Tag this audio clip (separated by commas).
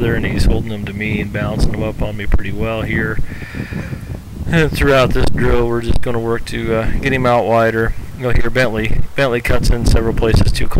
Speech